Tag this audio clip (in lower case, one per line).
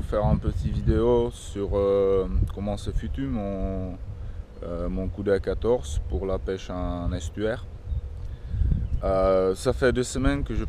speech